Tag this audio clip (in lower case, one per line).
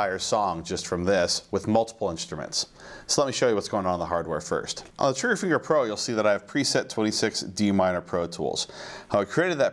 speech